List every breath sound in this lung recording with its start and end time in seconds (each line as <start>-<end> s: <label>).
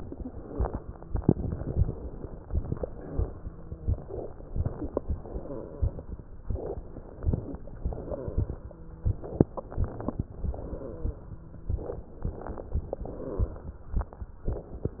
0.00-1.29 s: exhalation
0.36-1.29 s: wheeze
1.31-2.48 s: inhalation
1.31-2.48 s: crackles
2.50-4.04 s: exhalation
3.37-4.04 s: wheeze
4.04-5.00 s: inhalation
4.04-5.00 s: crackles
5.03-6.13 s: exhalation
5.03-6.13 s: crackles
6.50-7.61 s: inhalation
6.50-7.61 s: crackles
7.81-9.18 s: exhalation
8.52-9.18 s: wheeze
9.31-10.17 s: inhalation
9.31-10.17 s: crackles
10.38-11.79 s: exhalation
10.80-11.83 s: wheeze
12.05-13.00 s: crackles
12.09-13.04 s: inhalation
13.02-13.97 s: exhalation
13.02-13.97 s: crackles